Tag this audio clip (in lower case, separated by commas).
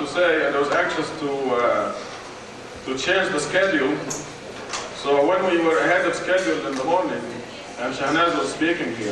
speech, monologue, male speech